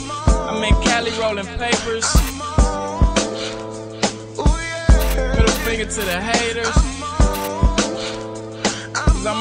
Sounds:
hip hop music, music

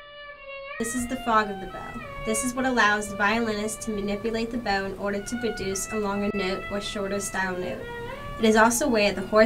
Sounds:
musical instrument, music, speech, violin

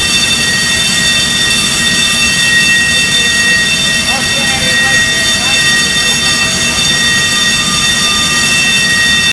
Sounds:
speech

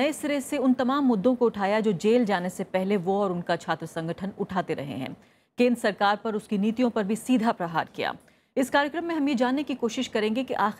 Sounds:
female speech, speech

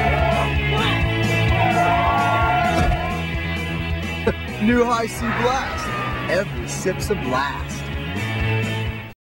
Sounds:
speech, music

